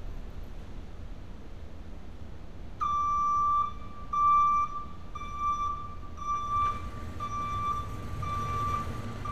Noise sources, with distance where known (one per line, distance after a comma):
reverse beeper, near